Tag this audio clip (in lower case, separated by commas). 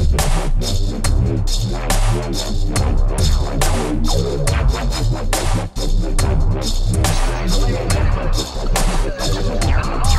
dubstep, music